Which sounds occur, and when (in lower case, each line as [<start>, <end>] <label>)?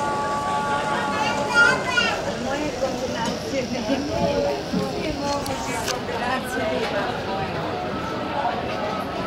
[0.01, 9.25] music
[0.01, 9.25] hubbub
[0.89, 2.22] man speaking